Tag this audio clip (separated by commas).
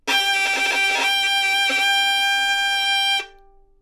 Music, Musical instrument, Bowed string instrument